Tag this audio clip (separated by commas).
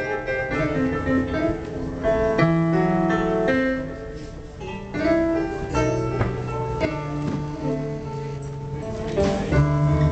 Music